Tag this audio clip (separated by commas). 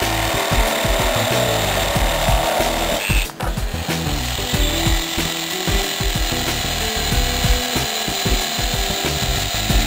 Tools, Music